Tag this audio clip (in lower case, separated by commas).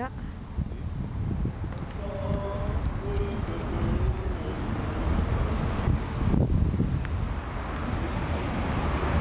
speech